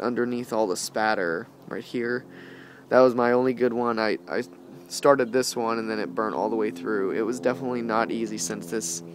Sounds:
vehicle
outside, urban or man-made
speech

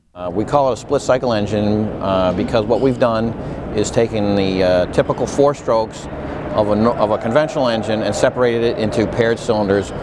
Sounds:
speech

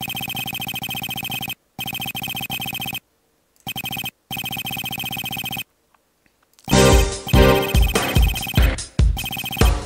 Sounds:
music

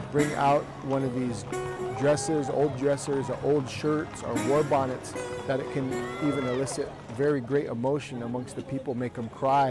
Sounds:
music
speech

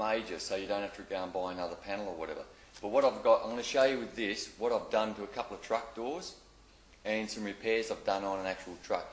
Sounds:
speech

